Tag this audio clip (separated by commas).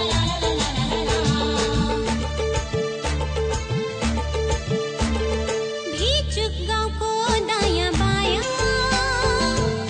Music, Music of Bollywood